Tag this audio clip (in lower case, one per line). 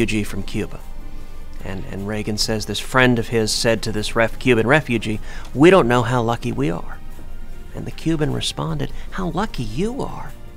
man speaking
speech
music